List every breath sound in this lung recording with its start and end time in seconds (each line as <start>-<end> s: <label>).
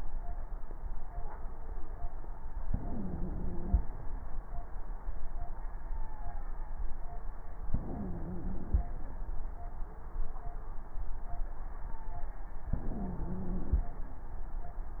2.67-3.82 s: inhalation
2.67-3.82 s: wheeze
7.71-8.87 s: inhalation
7.71-8.87 s: wheeze
12.72-13.88 s: inhalation
12.72-13.88 s: wheeze